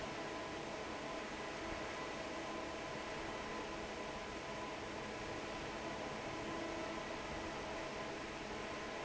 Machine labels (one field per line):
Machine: fan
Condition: normal